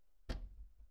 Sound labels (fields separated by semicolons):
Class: cupboard; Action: opening; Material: wooden